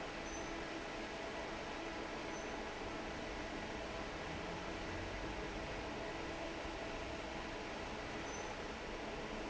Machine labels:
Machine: fan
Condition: normal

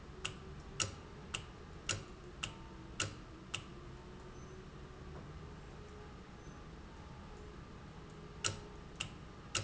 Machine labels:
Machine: valve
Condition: normal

